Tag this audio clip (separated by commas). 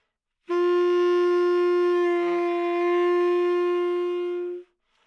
woodwind instrument, Music, Musical instrument